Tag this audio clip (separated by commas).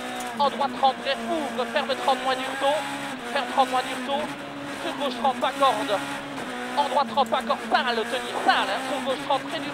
Speech